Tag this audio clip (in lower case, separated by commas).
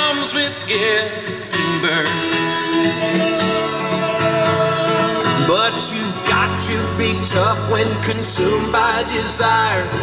music